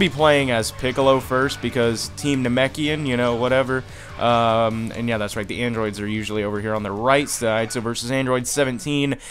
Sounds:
Speech

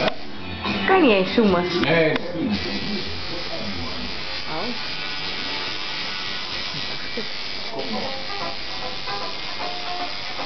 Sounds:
inside a small room, Music, Speech

